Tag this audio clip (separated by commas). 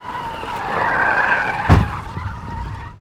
Vehicle